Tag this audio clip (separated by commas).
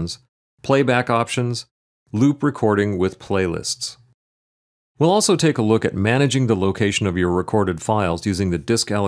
Speech